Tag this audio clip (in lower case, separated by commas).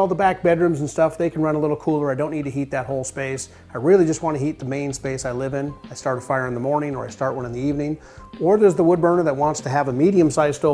music, speech